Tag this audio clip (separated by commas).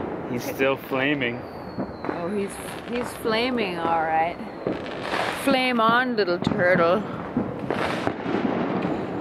outside, urban or man-made, Fireworks, Firecracker, Speech